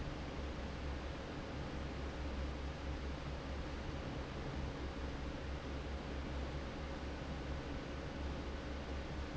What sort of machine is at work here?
fan